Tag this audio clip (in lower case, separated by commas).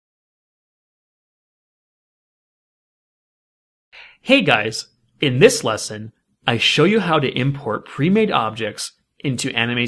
speech, monologue